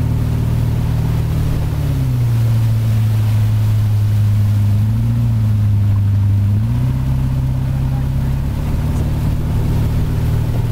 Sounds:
speedboat, Water vehicle, Speech, Vehicle

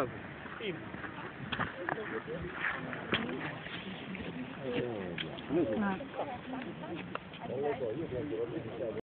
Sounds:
Speech

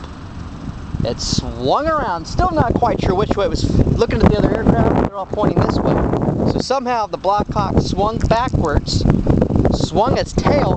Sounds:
Wind noise (microphone), Wind

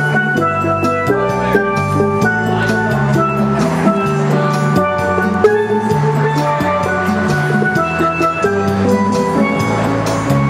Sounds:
Music, Musical instrument, Steelpan

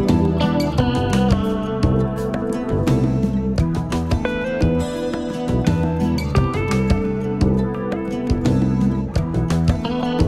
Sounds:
Music

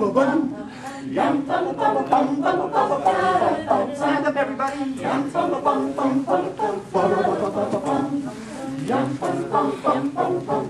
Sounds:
Speech

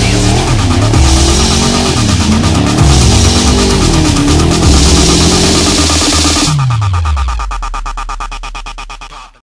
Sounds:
Music, Car, Vehicle

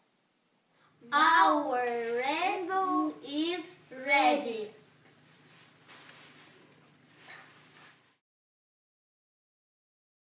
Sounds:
Child speech

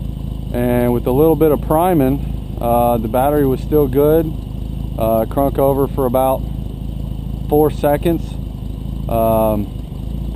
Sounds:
Speech

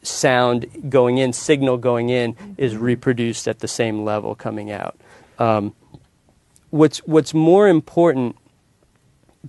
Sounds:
Speech

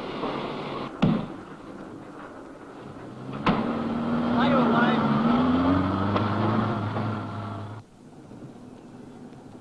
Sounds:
Speech

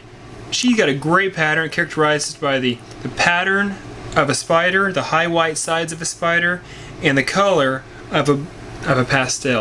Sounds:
inside a small room, Speech

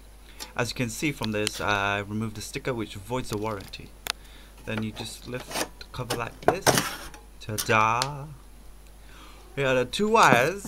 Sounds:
Speech, inside a small room

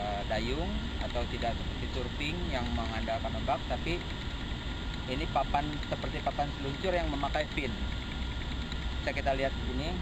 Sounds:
Speech

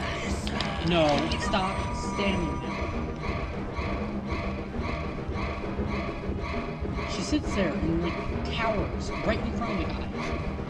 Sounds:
Music, Speech

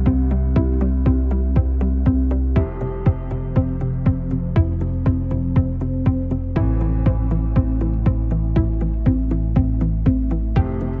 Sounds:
Music

